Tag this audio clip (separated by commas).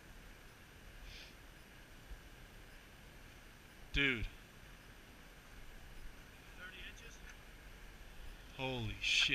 Speech